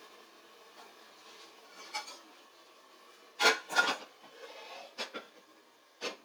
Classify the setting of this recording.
kitchen